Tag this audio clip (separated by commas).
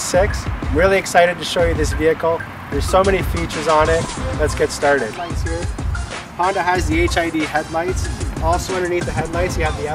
Speech, Music